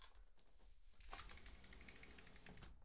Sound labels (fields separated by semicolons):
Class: window; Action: opening; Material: glass